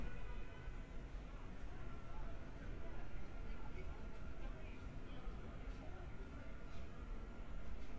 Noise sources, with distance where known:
person or small group talking, far

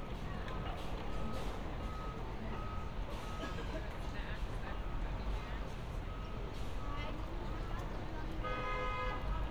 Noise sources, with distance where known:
unidentified alert signal

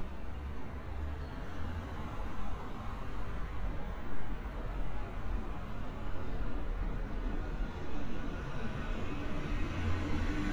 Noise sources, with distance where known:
medium-sounding engine, far

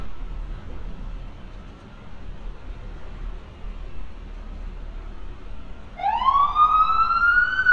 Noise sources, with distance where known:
siren, near

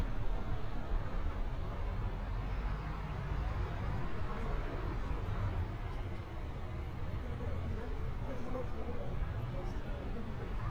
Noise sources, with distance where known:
engine of unclear size, far
person or small group talking, far

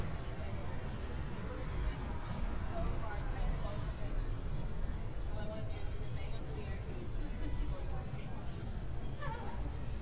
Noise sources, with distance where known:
person or small group talking

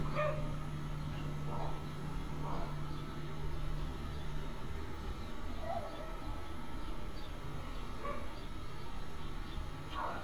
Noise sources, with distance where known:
dog barking or whining, near

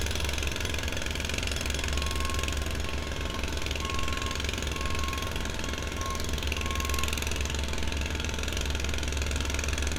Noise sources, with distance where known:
jackhammer, near

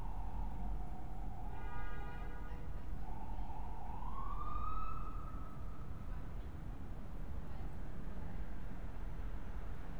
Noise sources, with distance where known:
siren, far

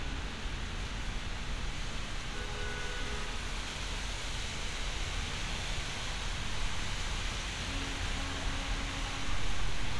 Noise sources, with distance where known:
car horn, far

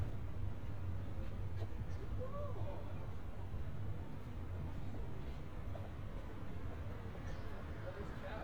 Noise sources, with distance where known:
person or small group talking

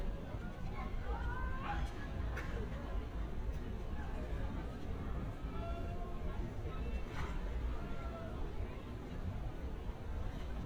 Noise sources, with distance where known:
unidentified human voice

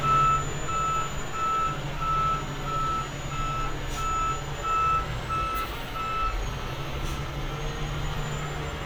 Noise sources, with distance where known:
large-sounding engine, near
reverse beeper, near

